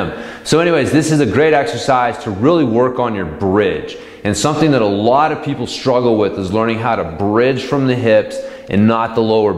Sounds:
Speech

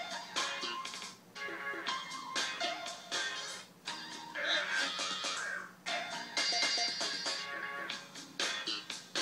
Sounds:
Electronic music, Music

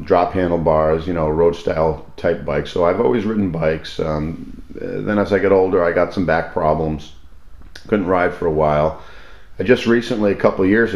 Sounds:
Speech

